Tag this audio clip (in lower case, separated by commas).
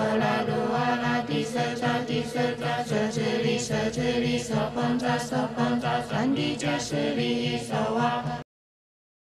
mantra, music